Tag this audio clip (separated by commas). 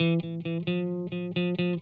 Music, Musical instrument, Plucked string instrument, Electric guitar, Guitar